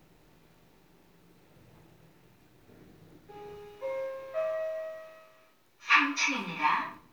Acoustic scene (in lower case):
elevator